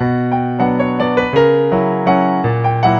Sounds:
Musical instrument, Piano, Keyboard (musical), Music

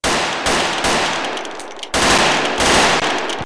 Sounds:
Gunshot, Explosion

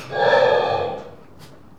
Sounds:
Animal, livestock

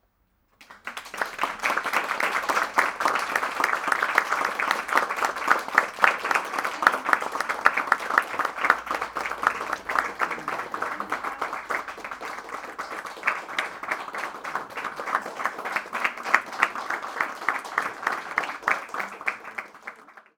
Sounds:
Human group actions, Applause

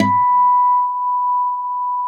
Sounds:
Music, Guitar, Acoustic guitar, Plucked string instrument, Musical instrument

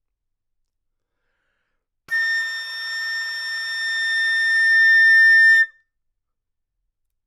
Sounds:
Musical instrument, woodwind instrument, Music

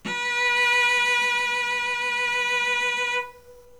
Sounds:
Music, Musical instrument, Bowed string instrument

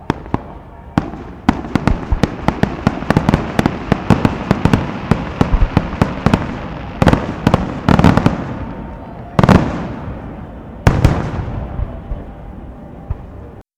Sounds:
Explosion, Fireworks

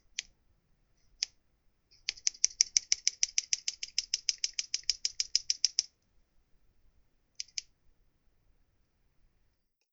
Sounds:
home sounds, Scissors

